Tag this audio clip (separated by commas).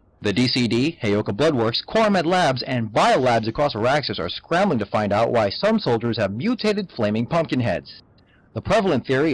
Speech